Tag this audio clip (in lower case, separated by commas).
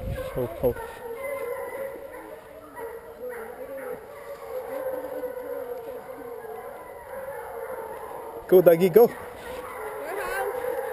speech